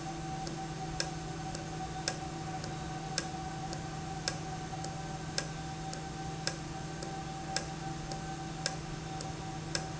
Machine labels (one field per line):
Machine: valve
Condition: normal